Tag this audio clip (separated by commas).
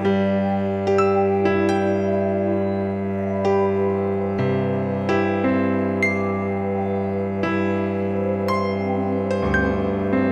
Music